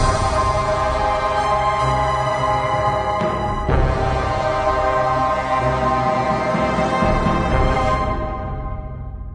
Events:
[0.03, 9.34] music

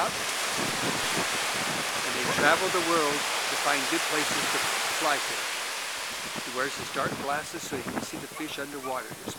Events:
[0.00, 0.09] male speech
[0.00, 9.35] conversation
[0.00, 9.35] surf
[0.00, 9.35] wind
[0.54, 1.19] wind noise (microphone)
[1.50, 1.79] wind noise (microphone)
[1.95, 2.81] wind noise (microphone)
[2.15, 2.37] dog
[2.29, 3.20] male speech
[3.64, 4.62] male speech
[4.15, 4.44] wind noise (microphone)
[4.92, 5.20] male speech
[6.14, 8.50] wind noise (microphone)
[6.32, 9.35] male speech
[6.81, 6.92] tick
[8.27, 8.43] dog
[8.68, 8.84] dog

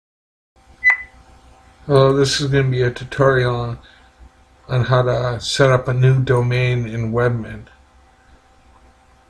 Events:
[0.52, 9.25] mechanisms
[0.80, 1.02] beep
[0.84, 0.91] tap
[1.86, 3.75] male speech
[3.76, 4.08] breathing
[4.64, 7.63] male speech

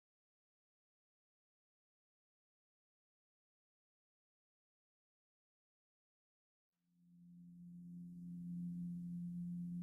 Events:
[6.82, 9.82] music

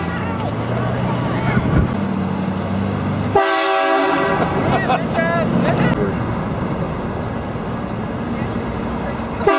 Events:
[0.00, 1.61] crowd
[0.00, 9.55] train
[3.30, 4.57] train horn
[4.67, 5.41] giggle
[4.67, 6.17] crowd

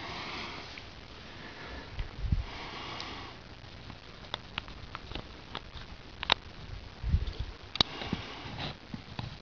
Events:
[0.00, 9.41] background noise
[7.71, 7.84] crack
[7.81, 8.75] breathing
[9.02, 9.37] wind noise (microphone)

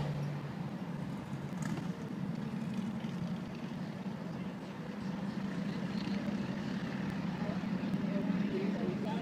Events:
[0.00, 9.21] car
[1.87, 9.21] speech noise

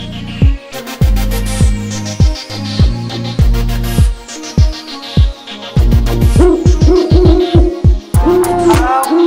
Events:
[0.00, 9.25] music
[6.36, 7.64] sound effect
[8.10, 8.77] sound effect
[8.66, 9.25] male singing

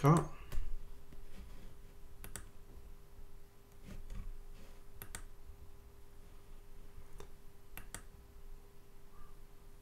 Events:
[0.00, 0.31] man speaking
[0.00, 9.81] mechanisms
[0.12, 0.20] clicking
[0.47, 0.57] clicking
[1.05, 1.14] clicking
[1.21, 1.80] surface contact
[2.19, 2.46] clicking
[3.64, 3.79] clicking
[3.78, 4.30] surface contact
[4.51, 4.87] surface contact
[4.97, 5.24] clicking
[7.14, 7.28] clicking
[7.73, 8.09] clicking
[9.11, 9.34] bird

